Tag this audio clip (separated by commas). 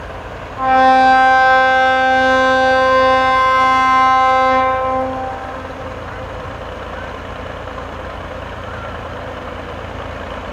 Vehicle